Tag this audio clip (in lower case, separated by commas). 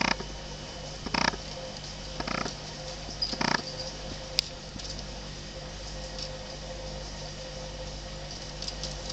animal